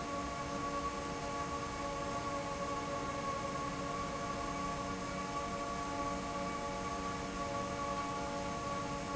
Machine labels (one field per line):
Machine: fan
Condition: normal